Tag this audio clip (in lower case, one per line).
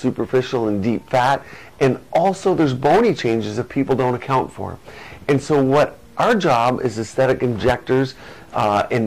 speech